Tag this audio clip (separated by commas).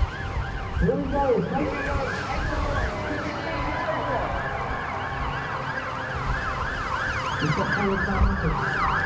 Police car (siren), Speech